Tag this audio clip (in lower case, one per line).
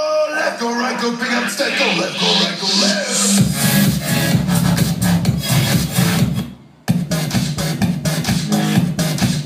music